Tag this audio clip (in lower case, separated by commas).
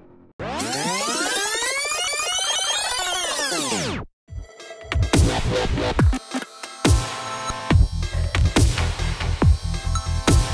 music